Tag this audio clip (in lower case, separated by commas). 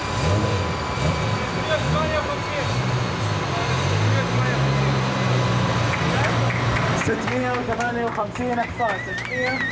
speech